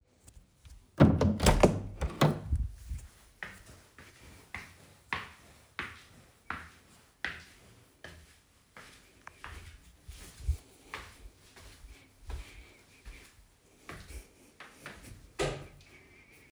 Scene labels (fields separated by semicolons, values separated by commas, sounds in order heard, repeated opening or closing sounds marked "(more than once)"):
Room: hallway; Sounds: door, footsteps, light switch